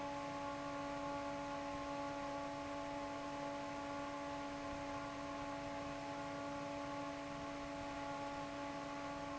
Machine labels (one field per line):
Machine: fan